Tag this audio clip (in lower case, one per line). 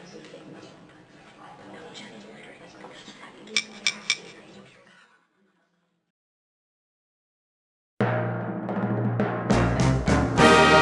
speech
inside a large room or hall
music